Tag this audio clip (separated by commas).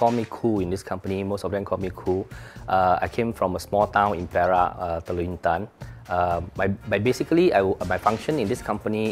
Music, Speech